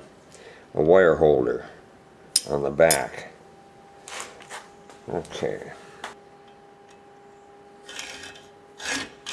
A deep male voice speaks, accompanied by soft shuffling, some metallic dings, and a scraping